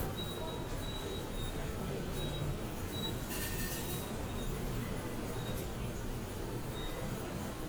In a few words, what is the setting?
subway station